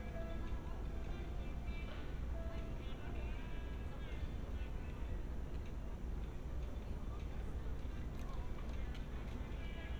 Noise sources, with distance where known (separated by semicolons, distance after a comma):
music from an unclear source, far